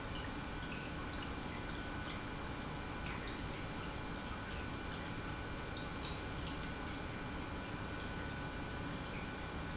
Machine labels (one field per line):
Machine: pump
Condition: normal